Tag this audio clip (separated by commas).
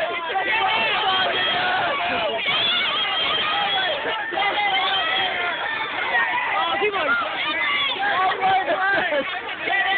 Speech